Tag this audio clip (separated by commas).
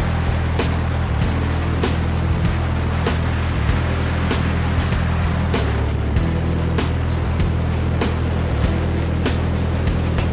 Music, Vehicle, Boat, speedboat